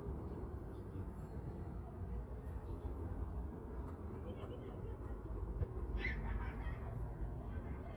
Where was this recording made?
in a residential area